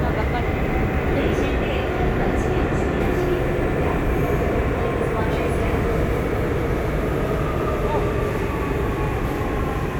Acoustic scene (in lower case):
subway train